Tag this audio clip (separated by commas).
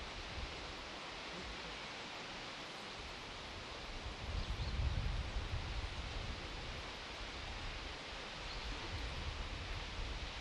Waterfall